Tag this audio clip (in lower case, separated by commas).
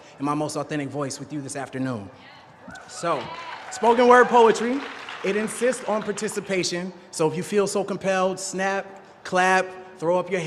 narration, speech, male speech